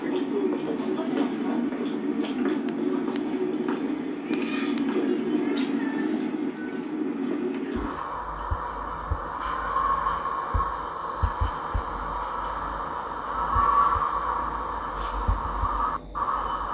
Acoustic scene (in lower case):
park